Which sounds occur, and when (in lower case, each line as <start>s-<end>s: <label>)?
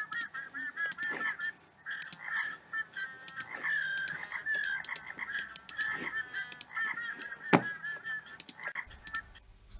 0.0s-1.5s: synthetic singing
0.0s-9.7s: video game sound
0.1s-0.2s: sound effect
0.8s-1.1s: sound effect
1.8s-9.5s: sound effect
2.2s-2.4s: croak
3.4s-3.7s: croak
4.1s-4.4s: croak
4.6s-5.2s: croak
5.9s-6.1s: croak
6.7s-6.9s: croak
6.7s-8.3s: synthetic singing
8.5s-8.8s: croak
9.7s-9.7s: sound effect